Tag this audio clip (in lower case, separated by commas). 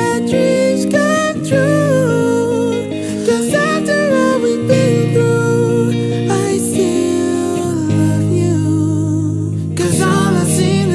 rhythm and blues, music